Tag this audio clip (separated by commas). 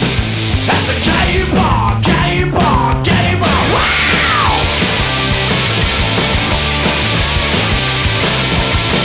Plucked string instrument, Guitar, Music, Musical instrument